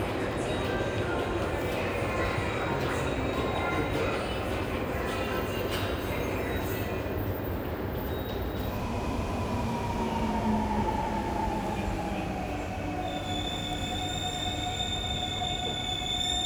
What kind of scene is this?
subway station